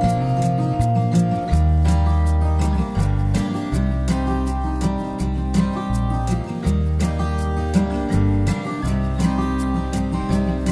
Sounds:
music

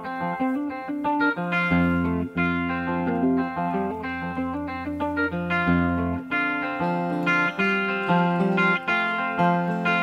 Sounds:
plucked string instrument, guitar, music

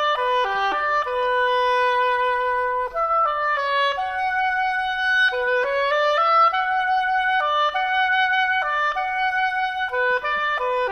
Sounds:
playing oboe

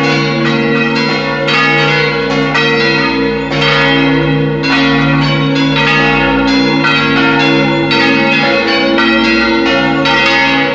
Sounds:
music, bell

